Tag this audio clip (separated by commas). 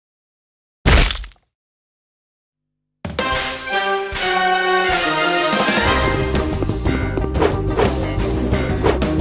Music